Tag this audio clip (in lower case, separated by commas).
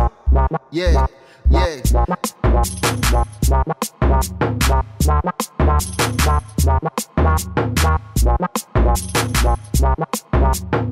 music, sampler, drum machine, hip hop music